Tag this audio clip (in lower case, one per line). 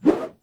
swoosh